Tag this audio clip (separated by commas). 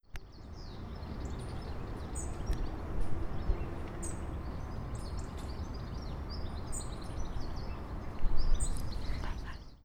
Wild animals, Animal, Bird